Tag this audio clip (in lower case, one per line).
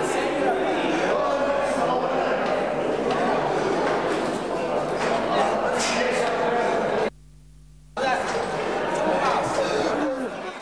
speech